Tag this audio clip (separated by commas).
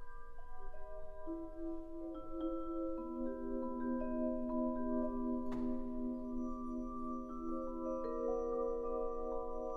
Musical instrument, Orchestra, Percussion, Classical music, Marimba, Music